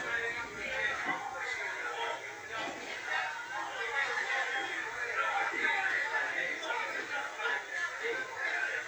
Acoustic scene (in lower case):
crowded indoor space